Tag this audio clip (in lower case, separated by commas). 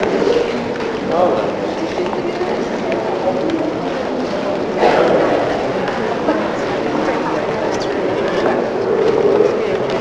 speech, human voice, conversation